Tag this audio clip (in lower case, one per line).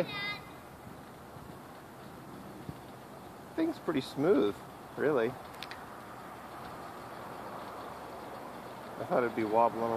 speech